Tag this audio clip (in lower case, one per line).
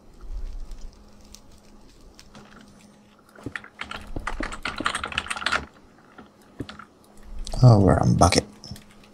speech